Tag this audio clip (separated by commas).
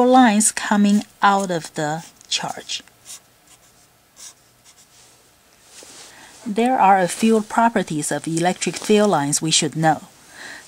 Speech